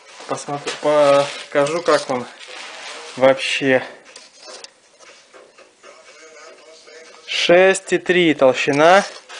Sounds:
planing timber

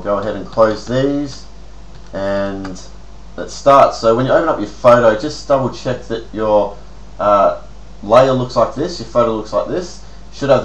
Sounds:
Speech

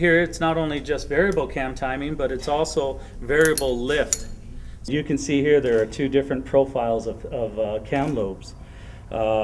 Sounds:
Speech

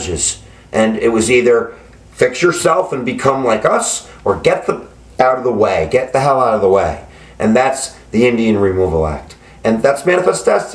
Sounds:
Speech

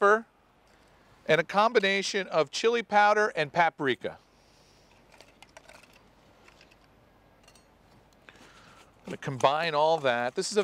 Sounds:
Speech

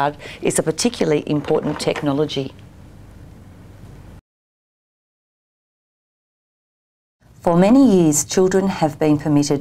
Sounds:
Speech

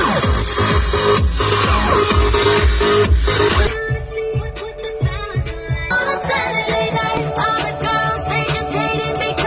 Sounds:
Music, Female singing

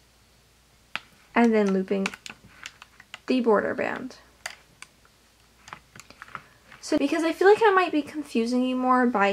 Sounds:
Speech

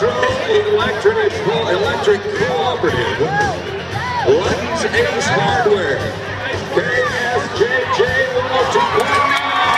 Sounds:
Speech, Music

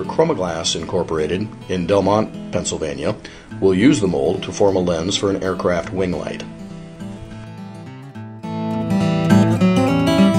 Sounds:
Music, Speech

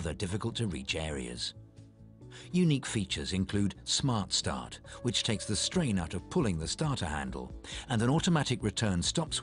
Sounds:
Speech, Music

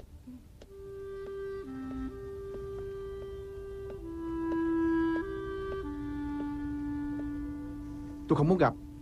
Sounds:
Speech, Music, Tap

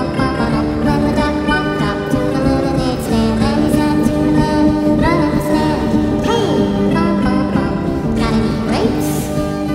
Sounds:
Music

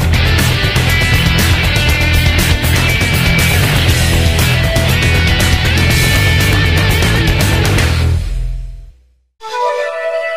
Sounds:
Music

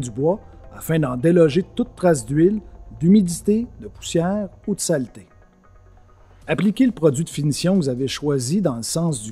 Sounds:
Music, Speech

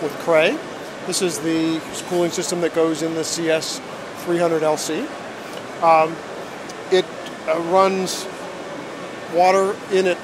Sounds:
Speech

